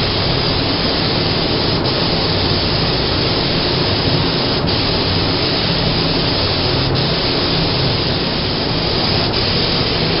Spray machine spraying